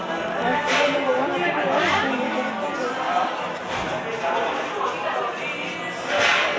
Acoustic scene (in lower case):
cafe